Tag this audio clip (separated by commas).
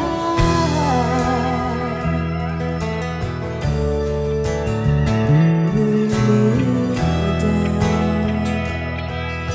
Music, Pop music, Singing